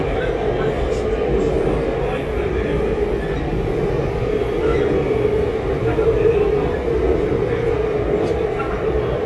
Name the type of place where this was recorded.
subway train